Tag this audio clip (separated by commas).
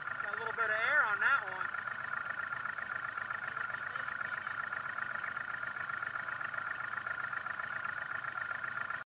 Vehicle, Speech